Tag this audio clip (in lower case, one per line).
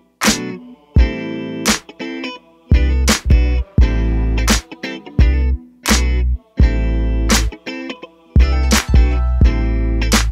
music